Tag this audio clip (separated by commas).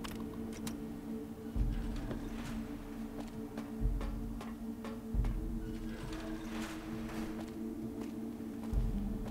Music